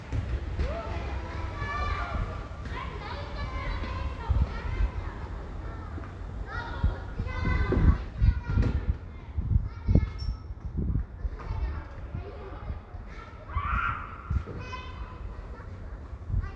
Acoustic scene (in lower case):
residential area